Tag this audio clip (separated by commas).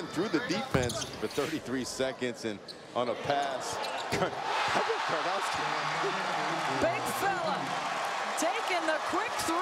Speech